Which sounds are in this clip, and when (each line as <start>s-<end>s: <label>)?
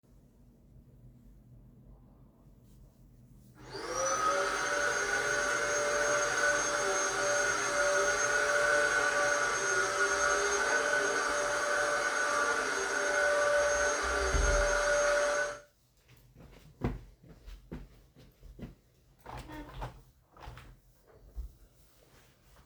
3.6s-15.6s: vacuum cleaner
16.0s-19.1s: footsteps
19.2s-20.7s: window